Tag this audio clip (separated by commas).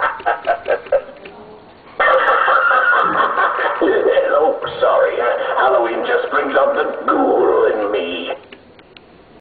Speech